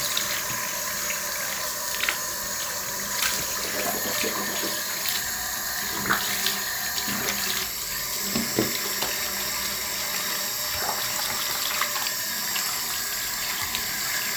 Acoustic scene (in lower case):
restroom